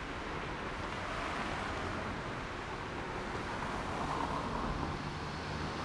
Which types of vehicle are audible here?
car, motorcycle